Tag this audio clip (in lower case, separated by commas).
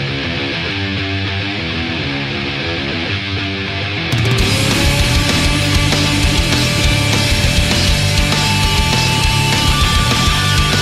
music, rock music, heavy metal